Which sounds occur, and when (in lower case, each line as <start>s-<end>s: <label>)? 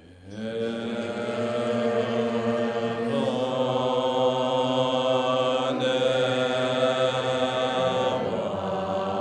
0.0s-9.2s: chant